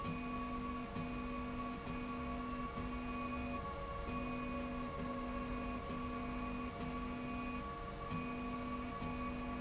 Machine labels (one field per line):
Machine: slide rail